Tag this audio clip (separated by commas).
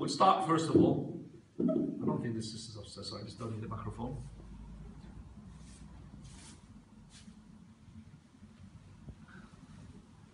Speech